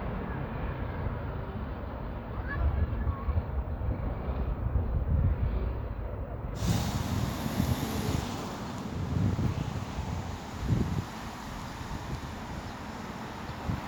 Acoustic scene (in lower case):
street